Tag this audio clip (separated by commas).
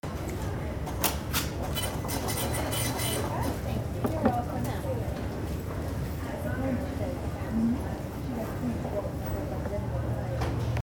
Mechanisms